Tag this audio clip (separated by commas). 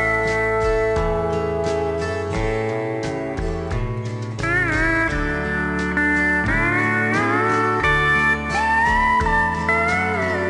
slide guitar